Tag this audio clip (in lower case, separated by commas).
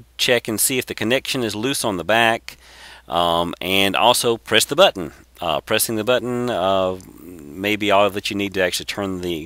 speech